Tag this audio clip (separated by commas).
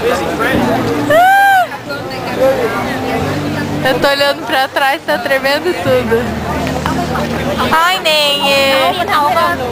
Speech